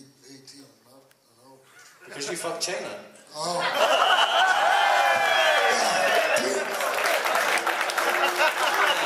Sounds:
laughter, speech

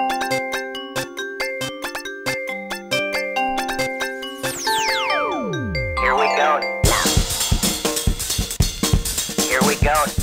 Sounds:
speech, music

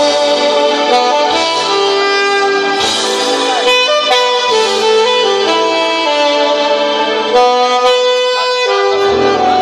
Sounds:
music

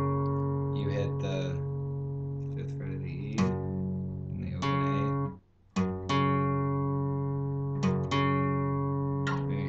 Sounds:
music, speech, guitar, musical instrument, plucked string instrument

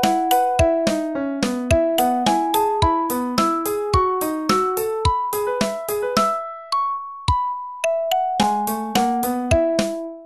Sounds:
music

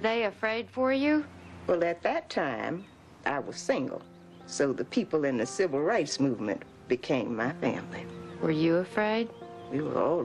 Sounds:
music, speech

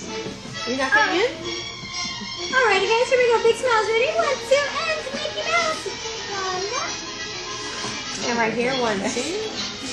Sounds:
speech, music

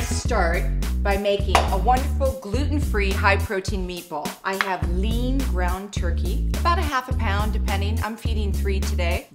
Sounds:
music, speech

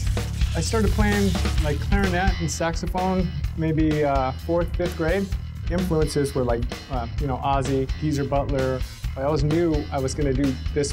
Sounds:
music, guitar, musical instrument, plucked string instrument, electric guitar, speech, strum

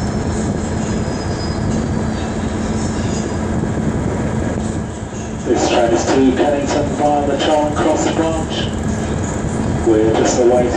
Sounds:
train, train wagon, speech, rail transport, vehicle

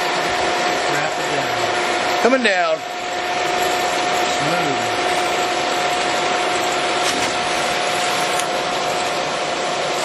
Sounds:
tools, speech

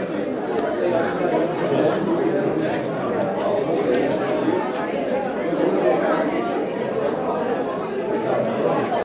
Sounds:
speech

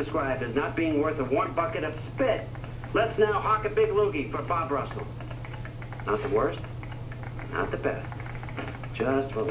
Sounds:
narration, speech, male speech

